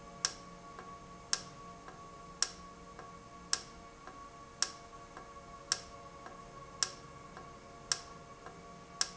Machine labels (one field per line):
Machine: valve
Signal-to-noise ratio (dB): 6 dB